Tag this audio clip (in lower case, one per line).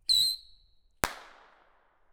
fireworks
explosion